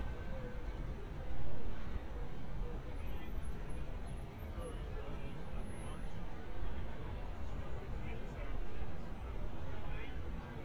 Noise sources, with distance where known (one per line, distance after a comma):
person or small group talking, near